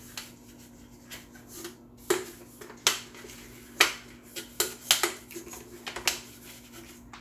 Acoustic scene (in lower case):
kitchen